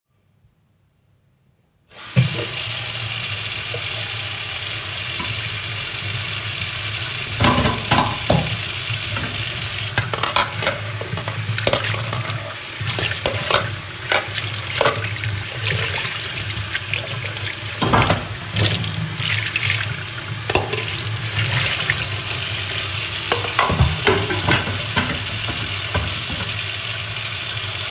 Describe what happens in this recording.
I opened the water. I started washing dishes while the water was running.